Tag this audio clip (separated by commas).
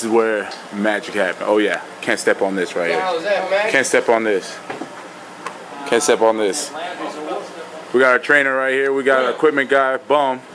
Speech